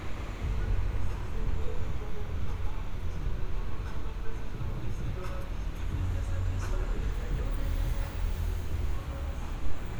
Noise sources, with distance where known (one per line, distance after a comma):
music from an unclear source, near